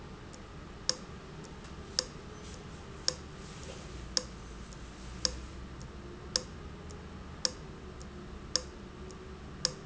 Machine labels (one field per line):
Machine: valve